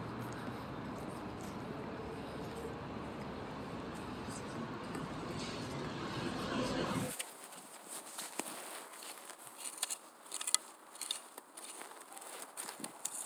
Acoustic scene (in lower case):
street